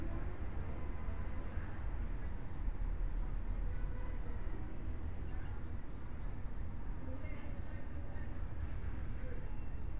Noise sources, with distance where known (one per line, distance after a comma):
unidentified human voice, far